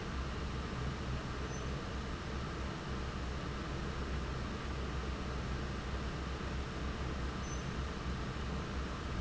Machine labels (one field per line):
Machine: fan